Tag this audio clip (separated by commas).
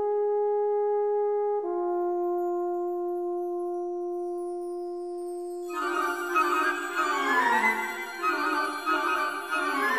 Music